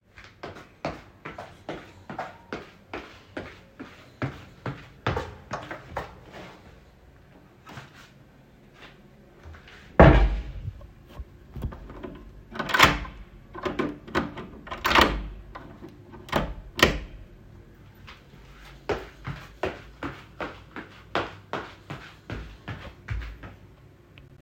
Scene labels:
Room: bedroom; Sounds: footsteps, door

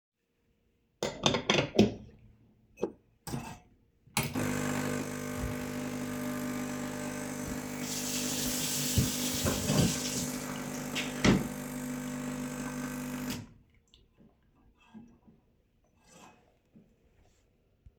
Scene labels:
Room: kitchen; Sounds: coffee machine, running water

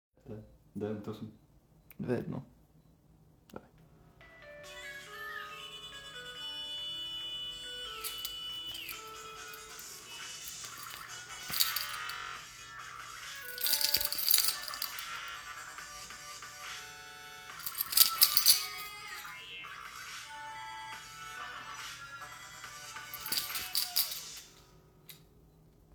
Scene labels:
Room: living room; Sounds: phone ringing, keys

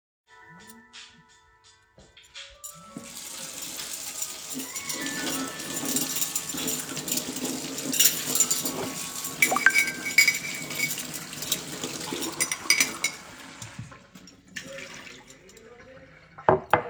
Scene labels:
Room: kitchen; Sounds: phone ringing, cutlery and dishes, running water

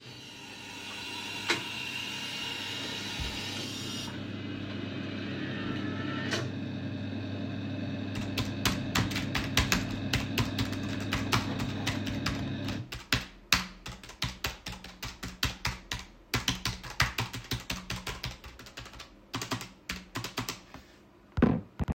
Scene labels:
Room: office; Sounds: coffee machine, keyboard typing

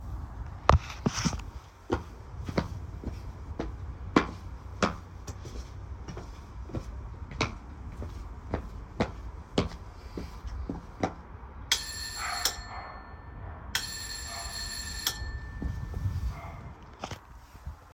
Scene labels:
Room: hallway; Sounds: footsteps, bell ringing

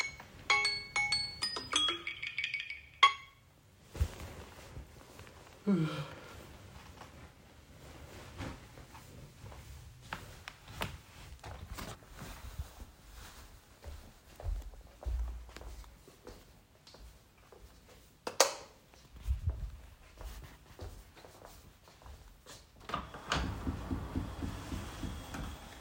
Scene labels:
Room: bedroom; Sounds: phone ringing, footsteps, light switch, window

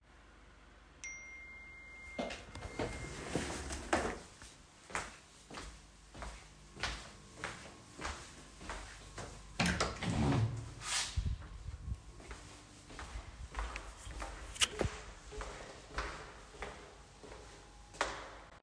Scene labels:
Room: bedroom; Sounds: phone ringing, footsteps, door

